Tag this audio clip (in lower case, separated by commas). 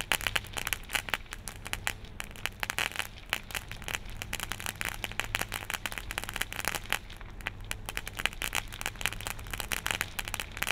fireworks banging, fireworks